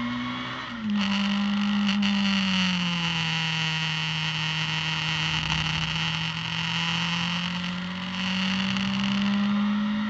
Sound of vehicle riding on a road